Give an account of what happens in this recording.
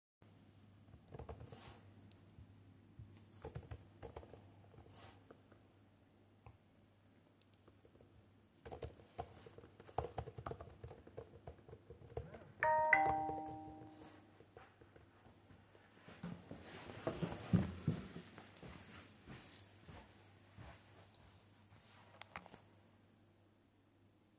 Working on my laptop and then the phone rings then go outside